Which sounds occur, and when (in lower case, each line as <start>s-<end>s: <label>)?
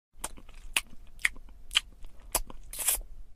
0.1s-3.3s: mechanisms
0.2s-0.7s: mastication
0.8s-1.0s: mastication
1.1s-1.1s: mastication
1.2s-1.4s: mastication
1.5s-1.5s: mastication
1.7s-1.9s: mastication
1.9s-2.0s: mastication
2.0s-2.1s: mastication
2.2s-2.3s: mastication
2.3s-2.4s: mastication
2.5s-2.7s: mastication
2.7s-3.0s: human sounds